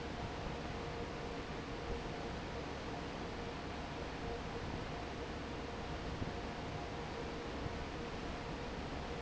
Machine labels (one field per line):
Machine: fan